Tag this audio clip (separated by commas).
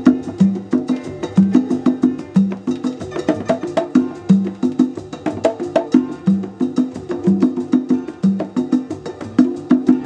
playing congas